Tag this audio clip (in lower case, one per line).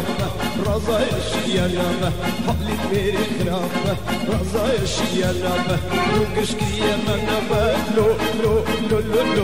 music